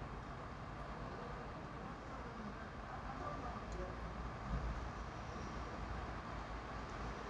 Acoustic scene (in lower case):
residential area